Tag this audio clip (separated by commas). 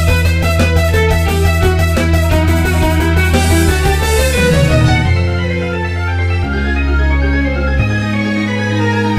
Musical instrument, Violin, Music